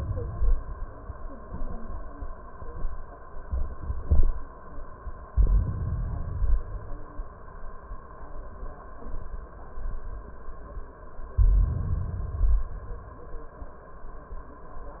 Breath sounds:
Inhalation: 5.29-6.79 s, 11.32-12.82 s

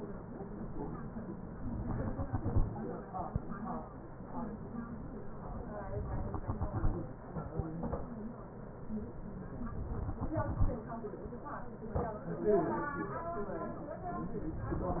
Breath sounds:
Exhalation: 1.77-3.27 s, 6.02-7.52 s, 9.99-11.49 s

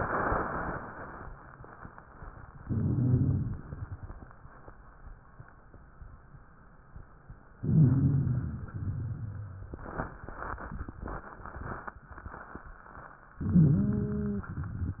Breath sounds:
Inhalation: 2.62-3.66 s, 7.61-8.73 s, 13.45-14.53 s
Exhalation: 3.66-4.36 s, 8.75-9.68 s
Rhonchi: 2.62-3.66 s, 7.61-8.73 s, 8.75-9.68 s, 13.45-14.53 s
Crackles: 3.66-4.36 s

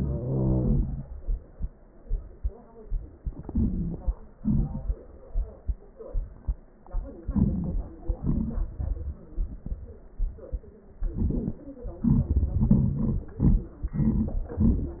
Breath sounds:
Wheeze: 0.00-1.09 s

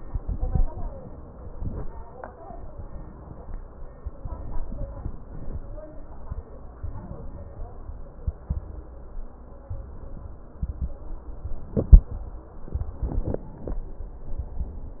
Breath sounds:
Inhalation: 4.20-5.05 s, 6.82-7.71 s, 9.69-10.58 s
Exhalation: 5.05-5.81 s, 7.71-8.26 s, 10.58-11.42 s

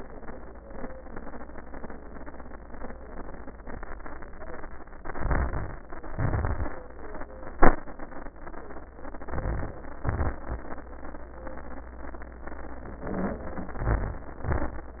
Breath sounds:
Inhalation: 5.02-5.77 s, 9.13-9.89 s, 13.07-13.82 s
Exhalation: 6.07-6.83 s, 10.05-10.80 s, 13.82-15.00 s
Wheeze: 13.07-13.82 s
Crackles: 5.05-5.81 s, 6.07-6.83 s, 9.10-9.85 s, 10.05-10.80 s, 13.82-15.00 s

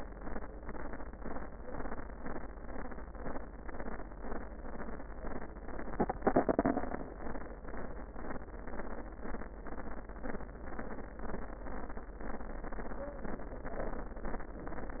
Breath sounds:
No breath sounds were labelled in this clip.

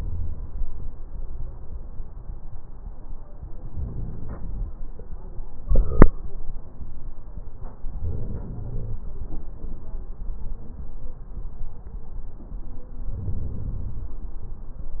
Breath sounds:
Inhalation: 3.59-4.67 s, 7.96-9.03 s, 13.07-14.15 s

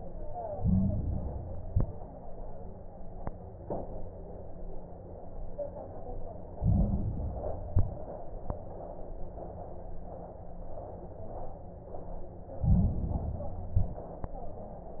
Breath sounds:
Inhalation: 0.42-1.54 s, 6.50-7.62 s, 12.56-13.68 s
Exhalation: 1.54-2.14 s, 7.66-8.26 s, 13.72-14.33 s
Crackles: 0.42-1.54 s, 1.54-2.14 s, 6.50-7.62 s, 7.66-8.26 s, 12.56-13.68 s, 13.72-14.33 s

